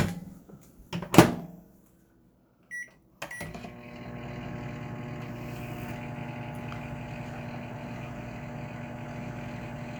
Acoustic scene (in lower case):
kitchen